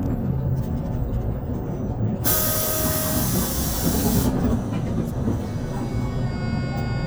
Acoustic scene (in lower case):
bus